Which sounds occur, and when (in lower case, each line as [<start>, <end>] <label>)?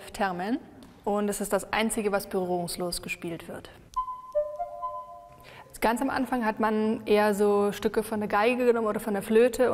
[0.00, 0.58] female speech
[0.00, 9.73] background noise
[0.75, 0.84] tick
[1.00, 1.58] female speech
[1.70, 3.81] female speech
[3.86, 3.99] tick
[3.94, 5.65] music
[4.26, 4.57] tick
[5.37, 5.66] breathing
[5.68, 9.73] female speech